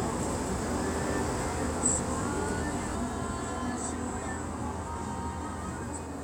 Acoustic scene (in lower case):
street